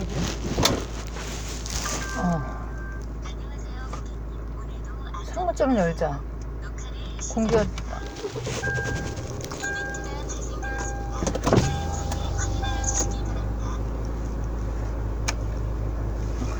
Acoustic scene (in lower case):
car